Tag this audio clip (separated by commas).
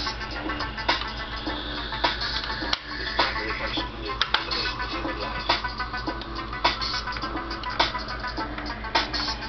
Music, Speech